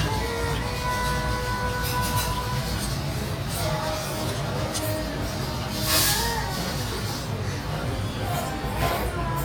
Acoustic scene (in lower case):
restaurant